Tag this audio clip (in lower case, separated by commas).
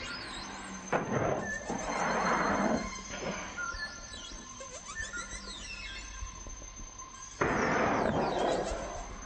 music